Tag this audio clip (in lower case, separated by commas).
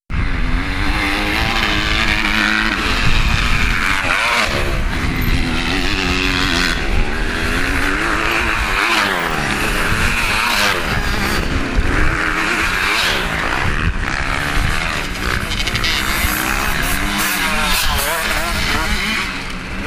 motorcycle, motor vehicle (road), vehicle